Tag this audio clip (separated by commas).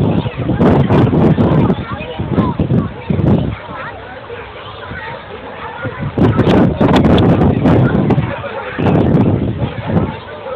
Speech